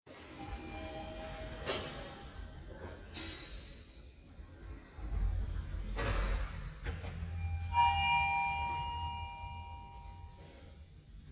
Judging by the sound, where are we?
in an elevator